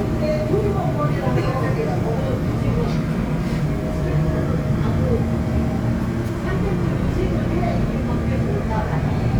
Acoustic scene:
subway train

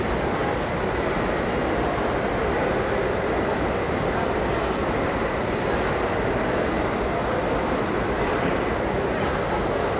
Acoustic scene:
crowded indoor space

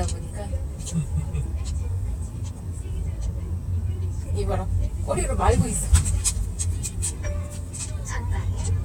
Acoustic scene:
car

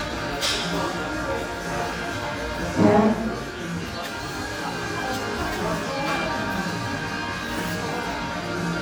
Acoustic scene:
crowded indoor space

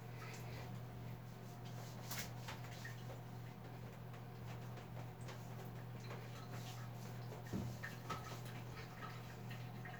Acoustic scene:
restroom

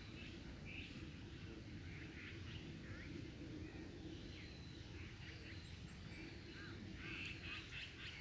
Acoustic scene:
park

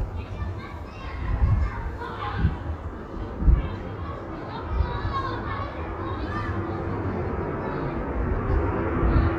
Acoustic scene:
residential area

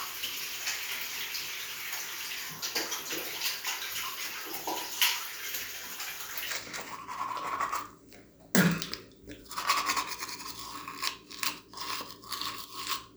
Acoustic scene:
restroom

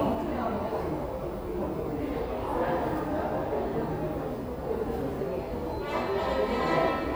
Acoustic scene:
subway station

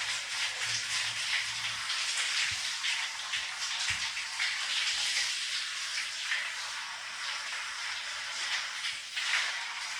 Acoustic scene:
restroom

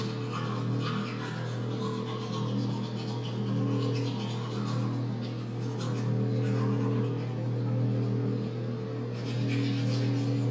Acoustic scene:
restroom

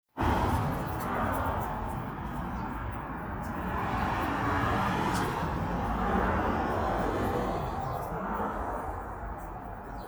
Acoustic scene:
street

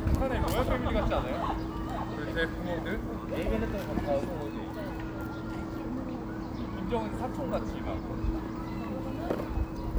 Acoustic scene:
park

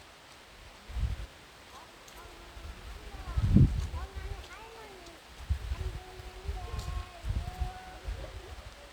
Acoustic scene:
park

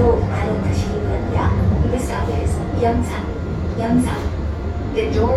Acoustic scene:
subway train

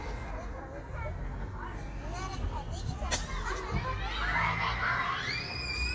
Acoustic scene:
park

